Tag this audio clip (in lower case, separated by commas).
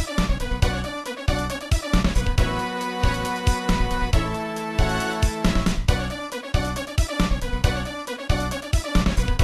music